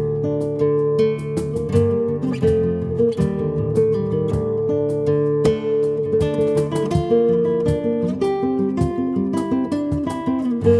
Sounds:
Musical instrument, Guitar, Music, Acoustic guitar, Flamenco

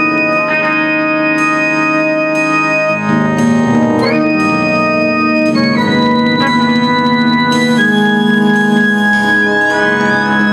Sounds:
Music, Organ, Guitar

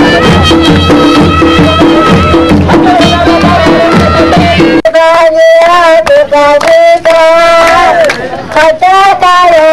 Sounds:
Tender music, Music

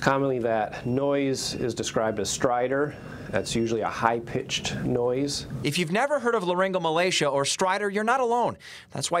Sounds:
Speech

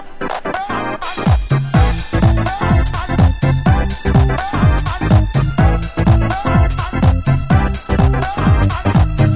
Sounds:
Music

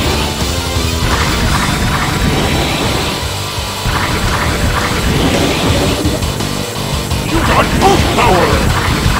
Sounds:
Music, Speech

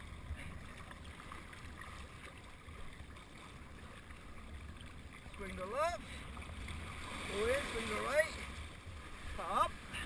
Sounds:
Stream, Gurgling, Speech

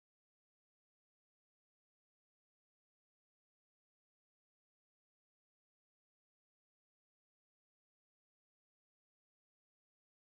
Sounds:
Music

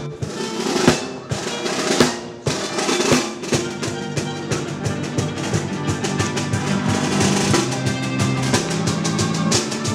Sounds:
fiddle, Music, Musical instrument

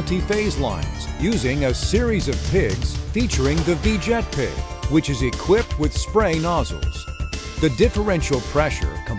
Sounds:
Music, Speech

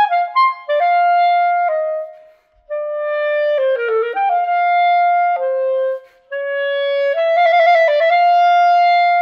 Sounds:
Clarinet, Music

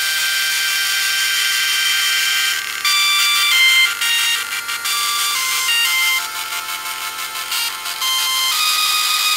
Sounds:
Printer, Music

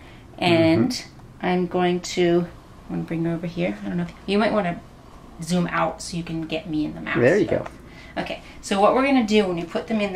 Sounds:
Speech

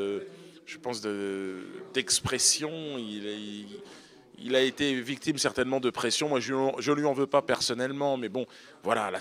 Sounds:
Speech

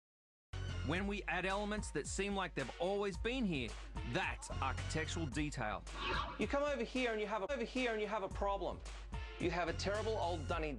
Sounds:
Music, Speech

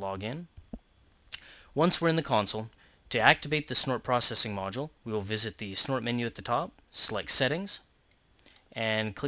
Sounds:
Speech

